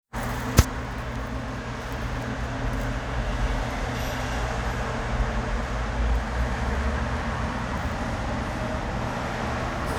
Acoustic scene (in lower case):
elevator